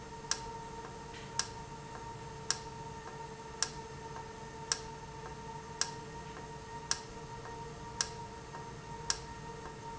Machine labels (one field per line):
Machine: valve